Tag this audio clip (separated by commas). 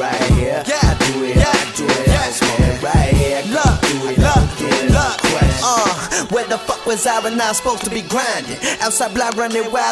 Music, Exciting music, Dance music